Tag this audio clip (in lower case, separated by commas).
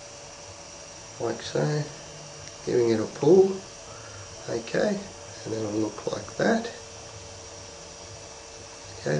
speech, inside a small room